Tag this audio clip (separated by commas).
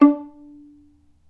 Bowed string instrument, Musical instrument, Music